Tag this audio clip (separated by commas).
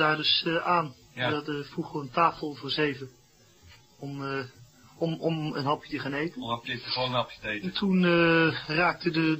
Speech